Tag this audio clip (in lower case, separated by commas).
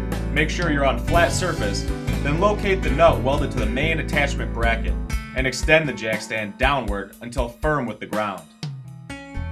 speech, music